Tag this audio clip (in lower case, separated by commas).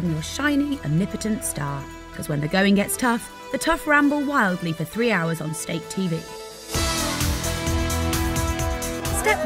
woman speaking, speech, music